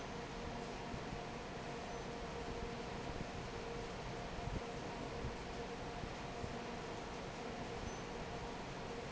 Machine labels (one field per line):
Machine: fan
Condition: normal